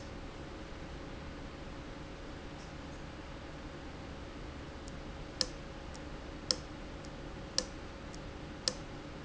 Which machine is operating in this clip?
valve